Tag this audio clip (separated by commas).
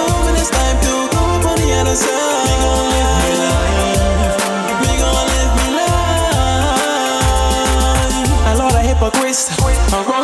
Music, Blues